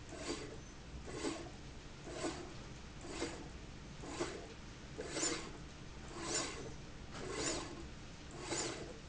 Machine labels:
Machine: slide rail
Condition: abnormal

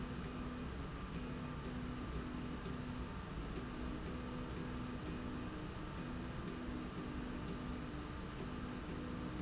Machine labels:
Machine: slide rail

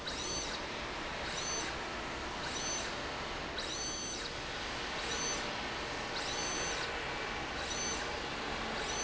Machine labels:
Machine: slide rail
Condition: abnormal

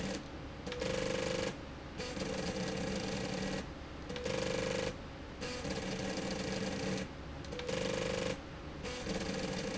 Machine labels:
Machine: slide rail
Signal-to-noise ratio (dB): 0 dB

